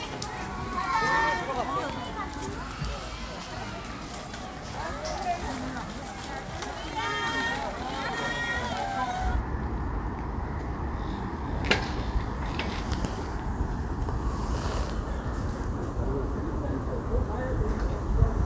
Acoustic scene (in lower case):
park